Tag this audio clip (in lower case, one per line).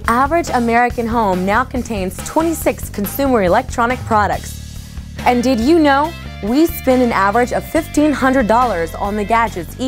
speech
music